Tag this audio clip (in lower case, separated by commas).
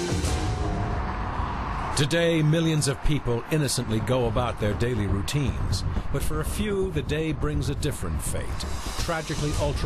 music, speech